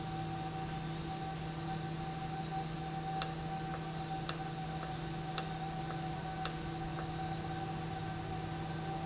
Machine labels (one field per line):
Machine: valve